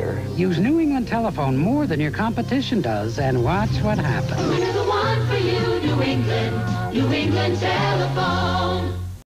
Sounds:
Music, Speech

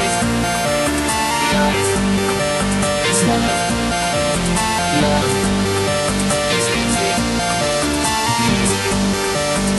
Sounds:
Music

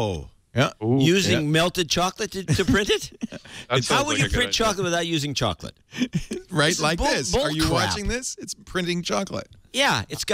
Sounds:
Speech

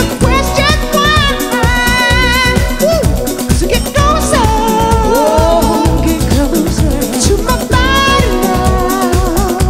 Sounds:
Dance music, Music

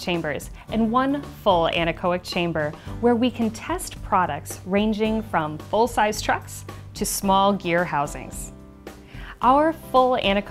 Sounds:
Speech, Music

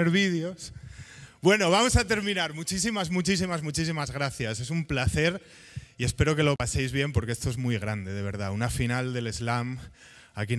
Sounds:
Speech

